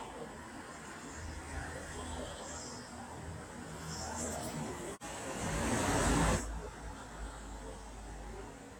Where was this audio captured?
on a street